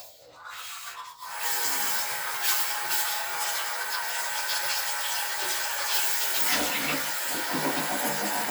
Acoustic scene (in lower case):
restroom